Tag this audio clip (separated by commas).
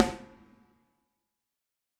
Drum, Musical instrument, Music, Snare drum, Percussion